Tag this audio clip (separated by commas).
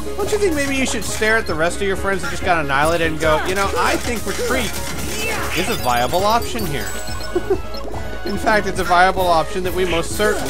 Speech, Music